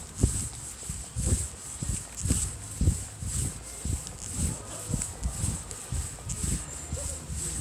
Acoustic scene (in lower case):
residential area